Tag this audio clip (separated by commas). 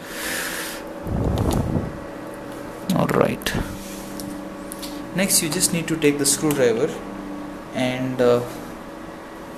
Microwave oven